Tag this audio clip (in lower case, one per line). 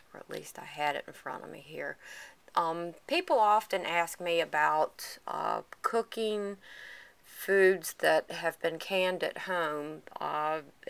speech